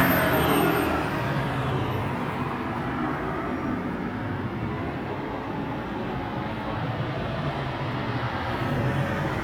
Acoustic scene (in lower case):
street